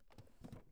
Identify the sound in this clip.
wooden drawer closing